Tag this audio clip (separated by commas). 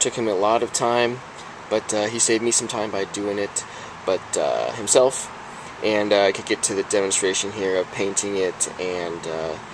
Speech